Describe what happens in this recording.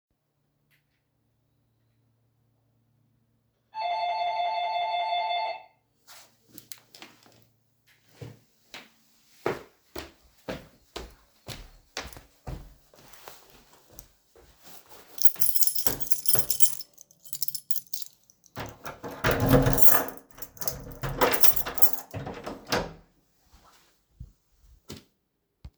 Someone rang my doorbell. I got up, went to the door, unlocked it, and opened it.